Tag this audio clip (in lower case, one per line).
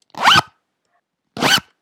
zipper (clothing)
home sounds